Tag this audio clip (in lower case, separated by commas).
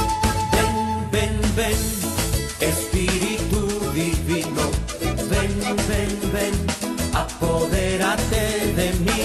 music